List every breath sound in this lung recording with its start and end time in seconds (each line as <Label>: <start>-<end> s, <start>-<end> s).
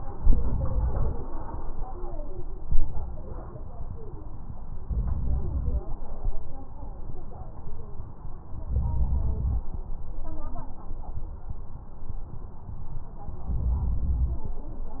Inhalation: 4.85-5.82 s, 8.67-9.64 s, 13.54-14.51 s
Crackles: 4.85-5.82 s